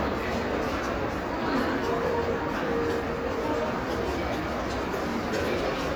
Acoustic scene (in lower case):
crowded indoor space